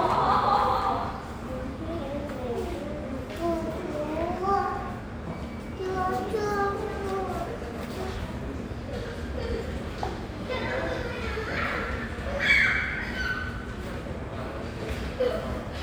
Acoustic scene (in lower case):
subway station